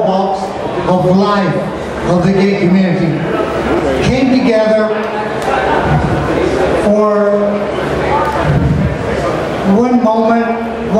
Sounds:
Speech, Female speech

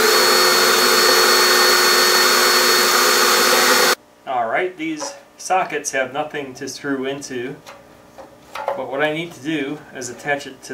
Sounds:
Drill, Speech

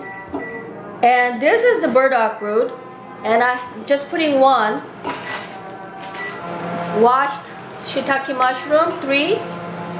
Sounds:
Speech, Music

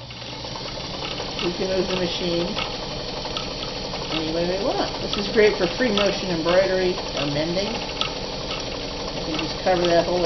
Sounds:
Sewing machine, Speech

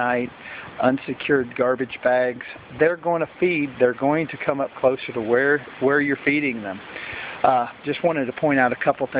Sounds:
Speech

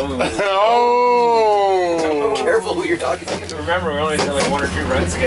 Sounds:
Speech

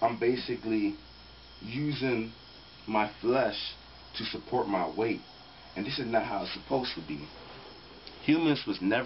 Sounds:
Speech, inside a small room

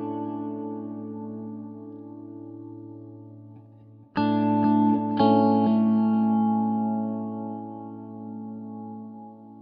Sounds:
Reverberation, Music

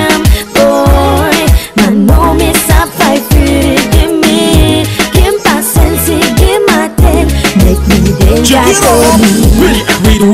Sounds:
Music

